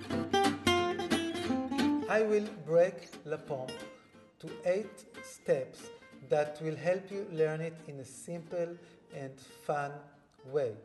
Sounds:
Strum, Musical instrument, Music, Acoustic guitar, Speech, Jazz, Plucked string instrument, Guitar

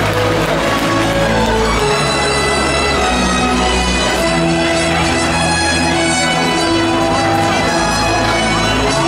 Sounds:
Music

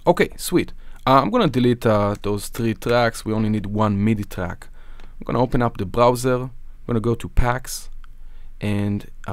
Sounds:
Speech

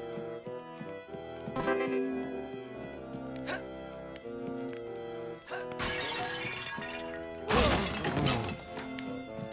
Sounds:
crash, Music

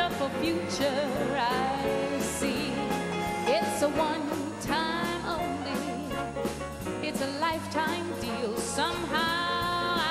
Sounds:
Female singing, Music

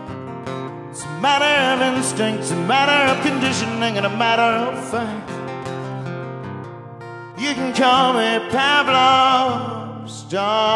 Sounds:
Music

